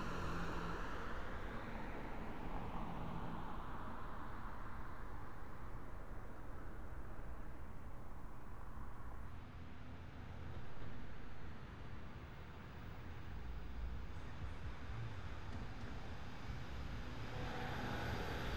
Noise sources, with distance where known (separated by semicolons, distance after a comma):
engine of unclear size